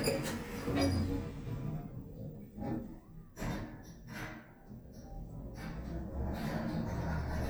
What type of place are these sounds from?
elevator